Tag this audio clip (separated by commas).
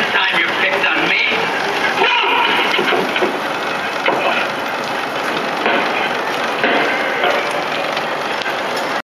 Speech, Vehicle, Bicycle